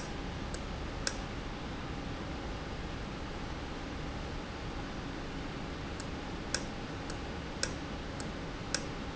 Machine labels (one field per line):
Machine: valve